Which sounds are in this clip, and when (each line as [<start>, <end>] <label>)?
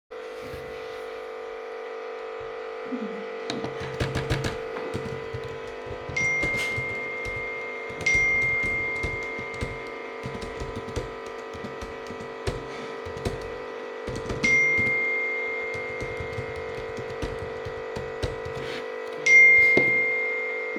[0.00, 20.78] coffee machine
[3.44, 18.89] keyboard typing
[6.16, 10.24] phone ringing
[14.43, 16.97] phone ringing
[19.24, 20.78] phone ringing